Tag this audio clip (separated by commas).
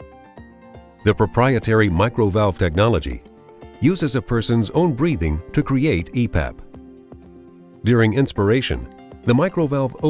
Music, Speech